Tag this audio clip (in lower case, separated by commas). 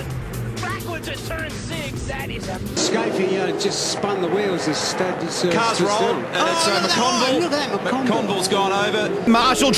speech, music